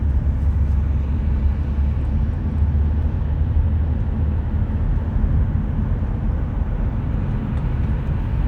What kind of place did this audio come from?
car